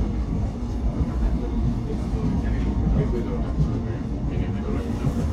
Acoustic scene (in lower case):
subway train